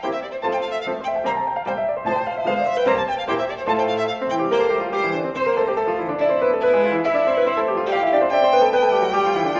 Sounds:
music, violin, musical instrument

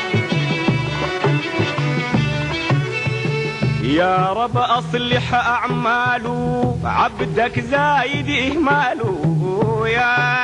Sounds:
music, folk music

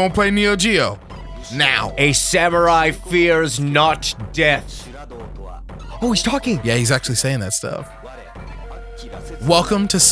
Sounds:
music, speech

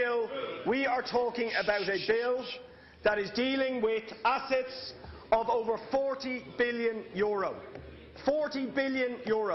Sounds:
narration, speech, man speaking

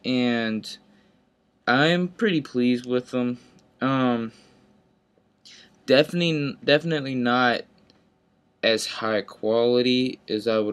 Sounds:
speech

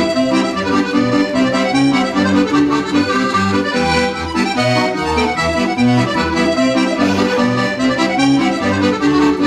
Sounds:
playing accordion

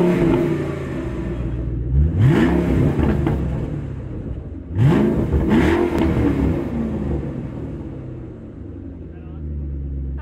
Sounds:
vroom, vehicle, engine, speech, motor vehicle (road), car

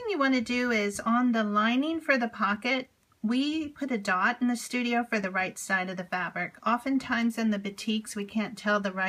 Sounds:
speech

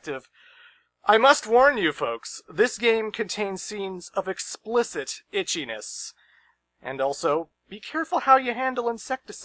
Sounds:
speech

